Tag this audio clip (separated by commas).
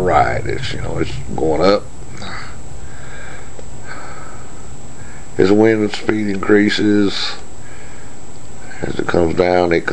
Speech